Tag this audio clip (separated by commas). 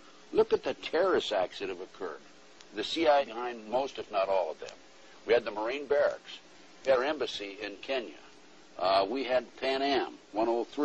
Speech